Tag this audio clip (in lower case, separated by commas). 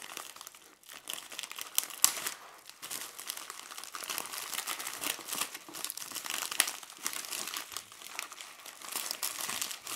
crinkling